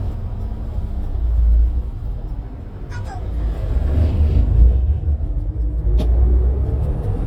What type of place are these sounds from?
bus